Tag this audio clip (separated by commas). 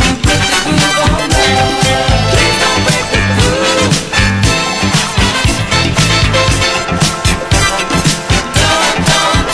Music, Funk